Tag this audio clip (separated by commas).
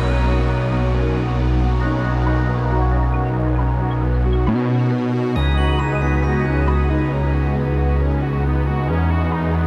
Music